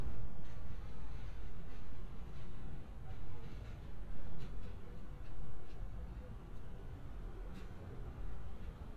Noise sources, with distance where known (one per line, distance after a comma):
background noise